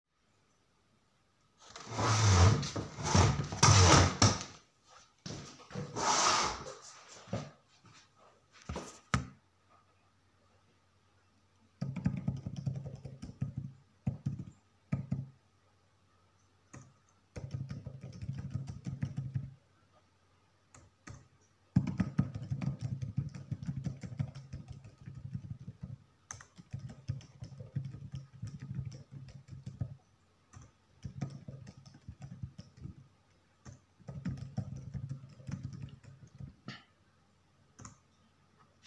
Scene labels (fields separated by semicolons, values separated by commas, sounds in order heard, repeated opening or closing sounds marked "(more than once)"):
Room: living room; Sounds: keyboard typing